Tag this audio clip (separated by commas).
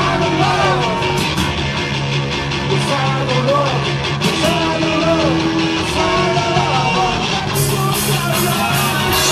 Music, Singing, inside a public space, Rock music